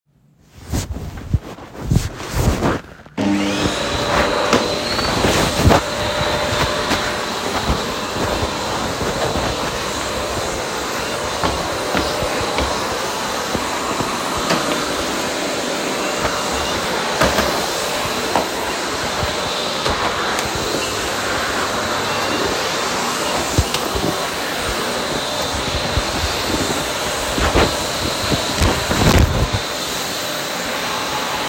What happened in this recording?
The recorder moves while a vacuum cleaner is being used in the living room. Footsteps remain audible as the cleaner is pushed across the floor. The scene captures a typical cleaning activity.